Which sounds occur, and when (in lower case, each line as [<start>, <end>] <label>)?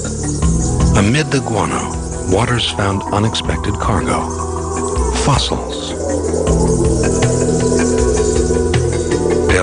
[0.00, 9.62] insect
[0.00, 9.62] music
[0.94, 1.92] man speaking
[2.26, 4.33] man speaking
[5.11, 5.97] man speaking